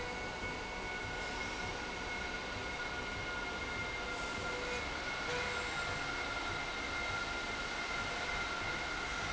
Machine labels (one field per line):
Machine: slide rail